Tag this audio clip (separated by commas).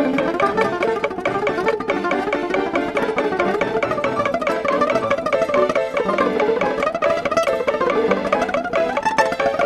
Acoustic guitar, Music, Musical instrument, Plucked string instrument